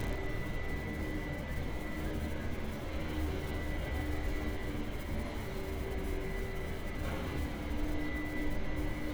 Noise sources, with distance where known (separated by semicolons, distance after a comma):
engine of unclear size